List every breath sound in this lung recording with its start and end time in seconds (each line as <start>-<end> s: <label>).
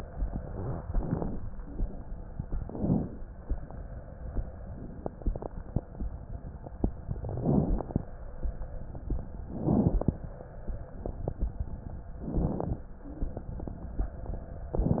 0.85-1.39 s: inhalation
0.85-1.39 s: crackles
2.62-3.15 s: inhalation
2.62-3.15 s: crackles
7.32-7.93 s: inhalation
7.32-7.93 s: crackles
9.51-10.19 s: inhalation
9.51-10.19 s: crackles
12.22-12.90 s: inhalation
12.22-12.90 s: crackles